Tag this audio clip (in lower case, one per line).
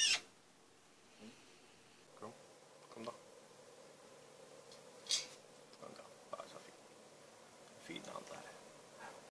speech
animal